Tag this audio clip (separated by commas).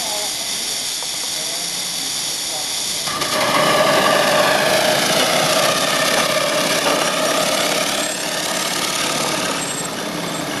Speech